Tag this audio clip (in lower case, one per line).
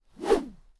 swish